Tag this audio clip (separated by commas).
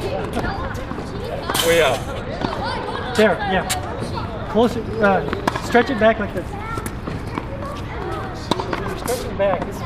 Speech